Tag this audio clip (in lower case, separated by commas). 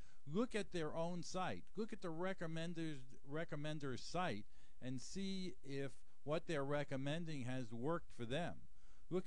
speech